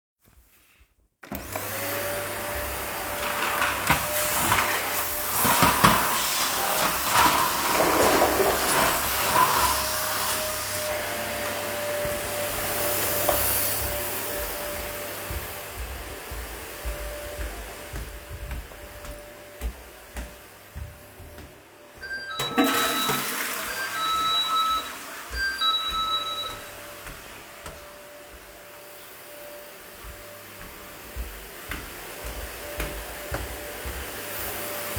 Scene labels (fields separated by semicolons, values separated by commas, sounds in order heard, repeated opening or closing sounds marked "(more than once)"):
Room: hallway, lavatory, living room; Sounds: vacuum cleaner, footsteps, bell ringing, toilet flushing